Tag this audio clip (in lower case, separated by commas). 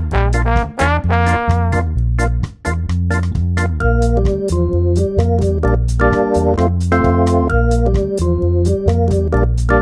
electronic music, music